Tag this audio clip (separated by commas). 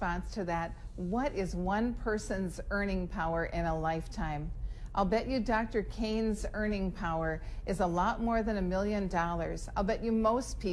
Speech